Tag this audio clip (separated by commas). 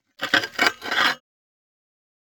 Glass